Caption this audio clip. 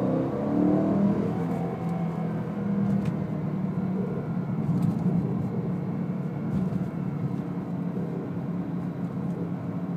A vehicle accelerating